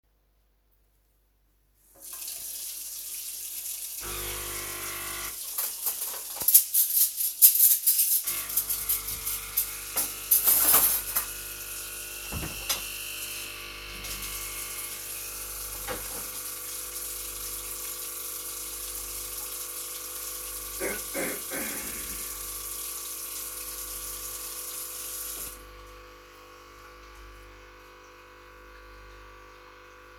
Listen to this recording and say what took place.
I am in the kitchen with water running, packing the cutlery into the drawer. At the same time a coffee machine is switched on and keeps running, while I take a plate, rinse it and put it in a dryer.